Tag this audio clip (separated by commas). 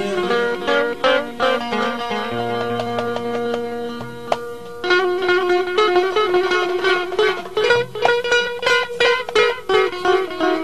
Plucked string instrument, Music, Guitar, Musical instrument, Strum